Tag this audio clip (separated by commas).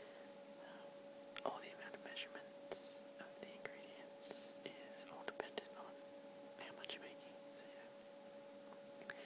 Speech, Whispering